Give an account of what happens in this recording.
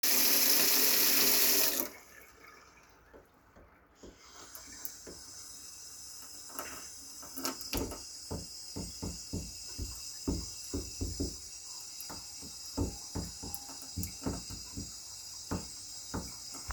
this is the sound of running water to rins utenstils in wash basin.